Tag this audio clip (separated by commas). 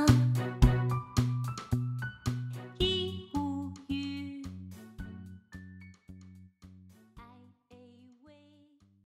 Female singing, Music